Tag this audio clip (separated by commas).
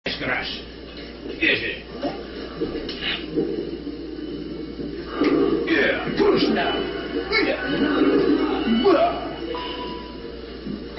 Music, Television, Speech